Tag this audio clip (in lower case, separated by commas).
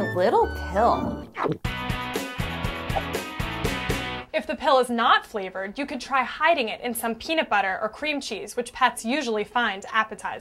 music, speech